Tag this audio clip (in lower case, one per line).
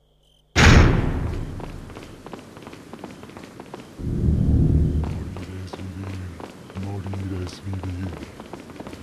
run
speech